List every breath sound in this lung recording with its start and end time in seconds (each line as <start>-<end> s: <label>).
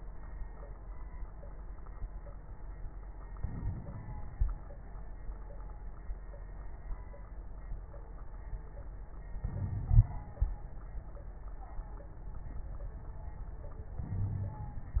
3.34-4.51 s: inhalation
3.34-4.51 s: crackles
9.44-10.60 s: inhalation
9.52-9.93 s: wheeze
14.06-14.86 s: inhalation
14.13-14.59 s: wheeze